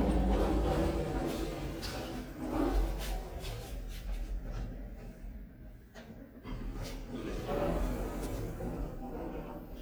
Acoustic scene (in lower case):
elevator